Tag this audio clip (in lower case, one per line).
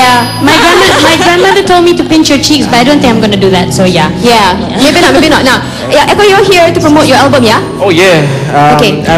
music
speech